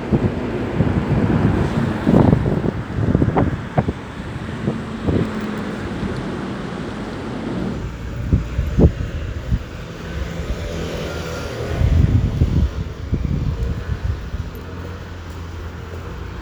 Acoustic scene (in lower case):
street